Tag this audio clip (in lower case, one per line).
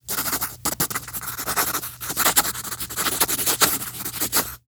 writing
domestic sounds